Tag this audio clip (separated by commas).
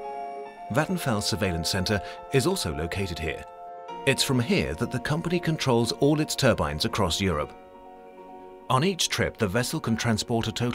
Music, Speech